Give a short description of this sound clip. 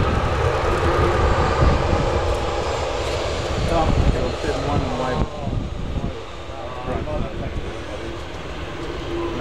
Engine running followed by speech